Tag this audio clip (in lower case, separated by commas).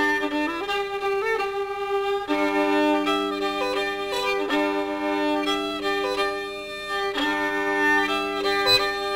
musical instrument, music, classical music, bowed string instrument, violin